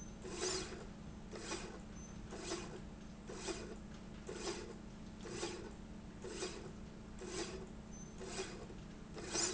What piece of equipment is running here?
slide rail